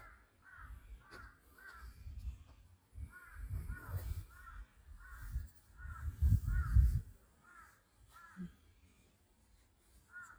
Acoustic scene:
park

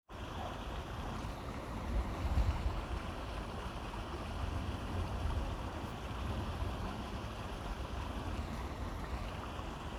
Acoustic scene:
park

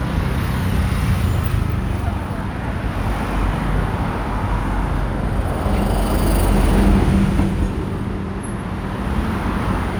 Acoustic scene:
street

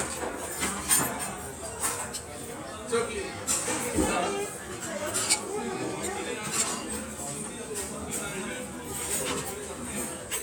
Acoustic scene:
restaurant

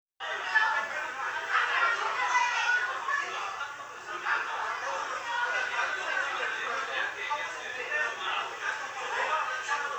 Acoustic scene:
crowded indoor space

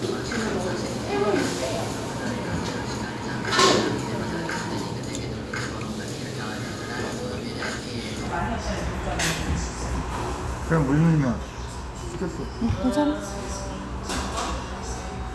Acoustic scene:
restaurant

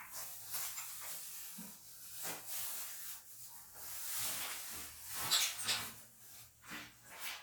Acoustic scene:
restroom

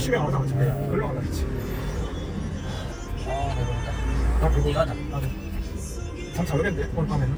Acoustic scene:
car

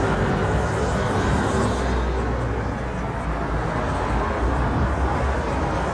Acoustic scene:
street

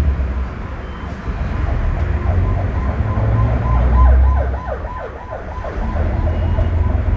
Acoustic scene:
bus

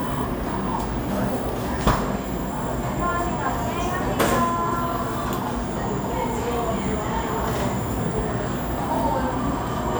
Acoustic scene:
cafe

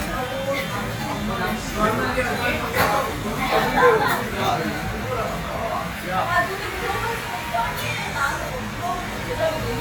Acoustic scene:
crowded indoor space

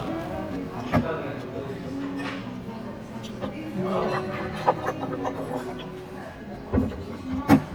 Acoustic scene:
crowded indoor space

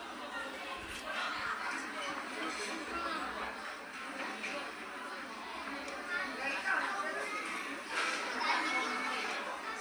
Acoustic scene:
restaurant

